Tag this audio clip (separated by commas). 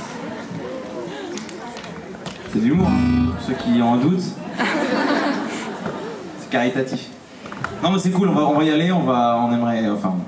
Speech, monologue, Male speech, Music